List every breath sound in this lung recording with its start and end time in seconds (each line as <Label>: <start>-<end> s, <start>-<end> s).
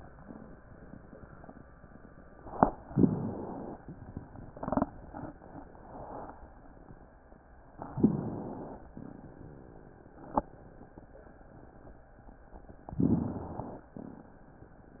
Inhalation: 2.89-3.86 s, 7.91-8.88 s, 12.93-13.89 s